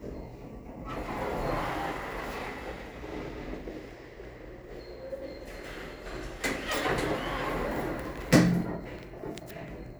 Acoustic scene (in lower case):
elevator